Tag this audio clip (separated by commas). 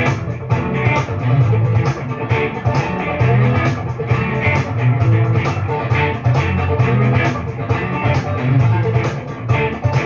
Music, Plucked string instrument, Electric guitar, Musical instrument, Guitar